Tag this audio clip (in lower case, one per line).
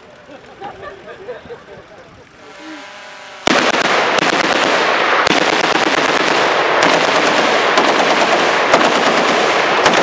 speech
vehicle
outside, urban or man-made